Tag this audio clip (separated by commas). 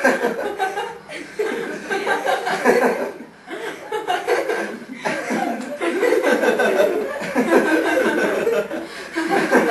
Laughter